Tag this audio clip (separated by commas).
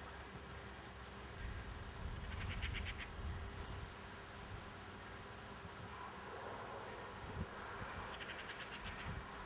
outside, rural or natural